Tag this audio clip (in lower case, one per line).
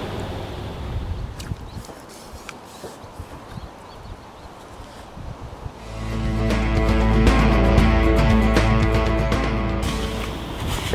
outside, rural or natural
music